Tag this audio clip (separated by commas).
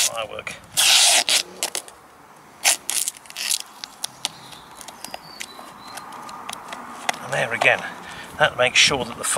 Speech, Crackle